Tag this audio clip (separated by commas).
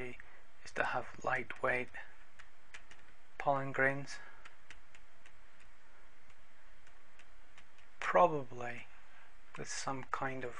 Speech